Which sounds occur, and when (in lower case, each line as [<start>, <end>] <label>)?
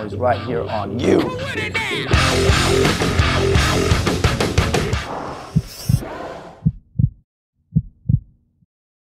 [0.00, 1.24] male speech
[0.00, 5.06] music
[1.18, 2.13] male singing
[5.06, 6.71] sound effect
[5.50, 6.02] heartbeat
[6.62, 7.15] heartbeat
[7.51, 8.65] background noise
[7.73, 8.20] heartbeat